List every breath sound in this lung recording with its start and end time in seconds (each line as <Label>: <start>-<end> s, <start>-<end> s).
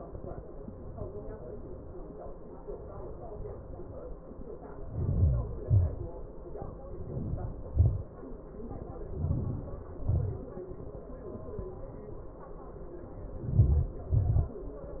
Inhalation: 4.69-5.71 s, 6.87-7.57 s, 8.82-9.60 s, 13.38-14.32 s
Exhalation: 5.77-6.40 s, 7.63-8.06 s, 9.62-10.27 s, 14.40-15.00 s